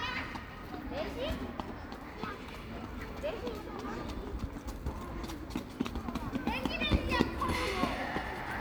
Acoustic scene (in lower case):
park